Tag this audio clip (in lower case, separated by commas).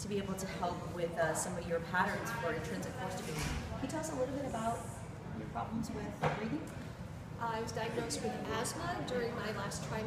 speech